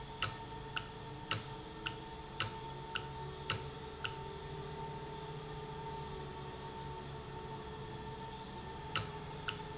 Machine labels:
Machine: valve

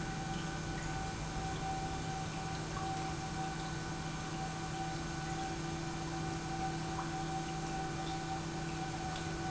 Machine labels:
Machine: pump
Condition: normal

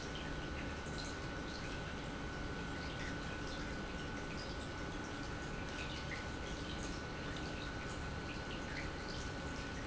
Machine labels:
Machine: pump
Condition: normal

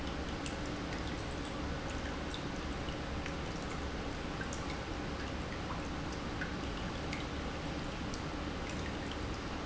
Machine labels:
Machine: pump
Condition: normal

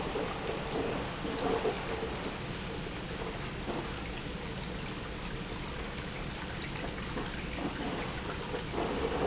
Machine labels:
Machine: pump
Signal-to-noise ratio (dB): -6 dB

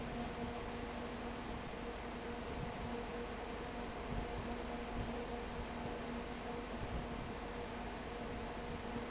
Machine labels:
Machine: fan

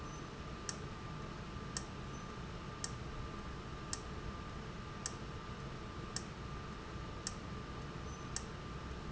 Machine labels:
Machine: valve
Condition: abnormal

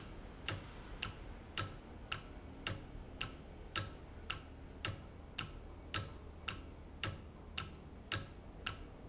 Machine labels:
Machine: valve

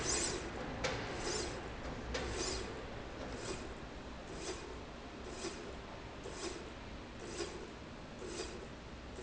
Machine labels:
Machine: slide rail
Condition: normal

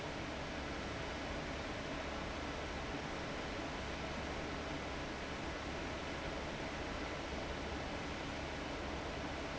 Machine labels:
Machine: fan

